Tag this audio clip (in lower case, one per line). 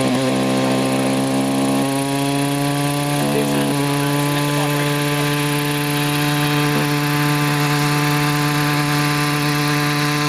speech